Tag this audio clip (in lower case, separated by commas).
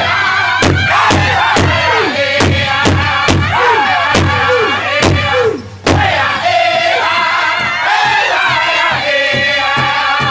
music, female singing, male singing